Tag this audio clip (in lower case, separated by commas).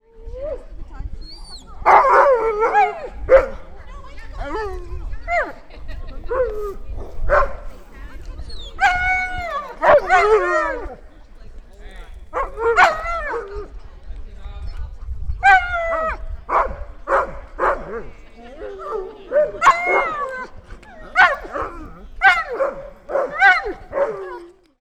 dog, animal, domestic animals